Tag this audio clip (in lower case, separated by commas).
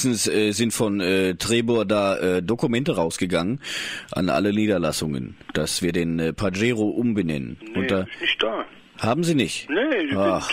speech